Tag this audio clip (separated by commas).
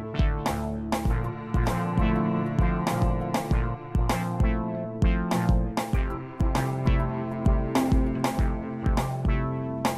Music, Cello, Musical instrument